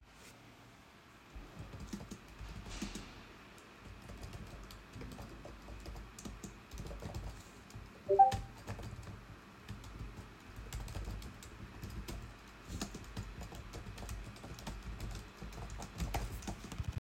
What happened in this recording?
While I was typing on my keyboard, I recieved a notification on my phone.